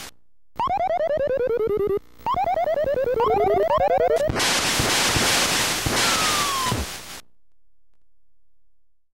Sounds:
Music

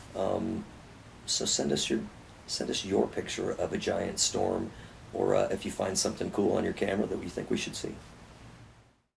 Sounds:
Speech

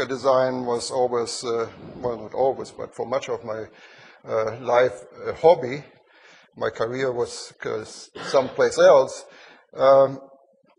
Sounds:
Speech

